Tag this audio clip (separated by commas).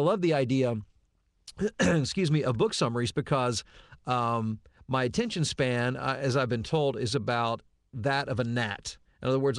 monologue